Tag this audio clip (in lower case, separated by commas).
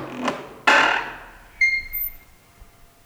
screech, squeak